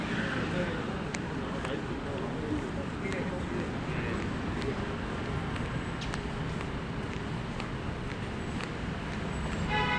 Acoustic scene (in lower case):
street